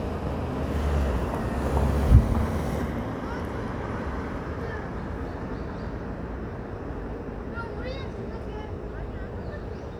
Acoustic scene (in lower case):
street